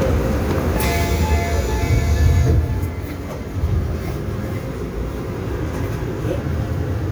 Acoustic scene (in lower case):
subway train